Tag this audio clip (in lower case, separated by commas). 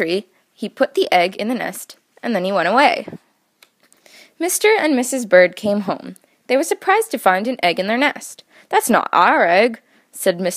speech